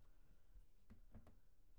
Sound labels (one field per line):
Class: cupboard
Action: opening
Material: wooden